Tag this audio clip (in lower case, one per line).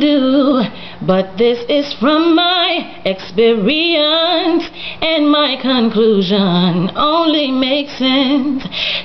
female singing